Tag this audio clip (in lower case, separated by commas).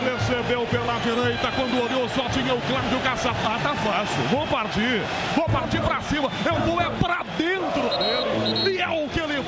speech, music